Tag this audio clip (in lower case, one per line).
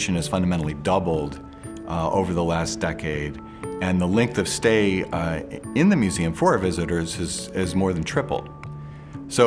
speech
music